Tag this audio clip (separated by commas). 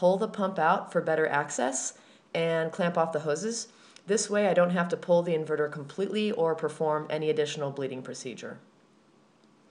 Speech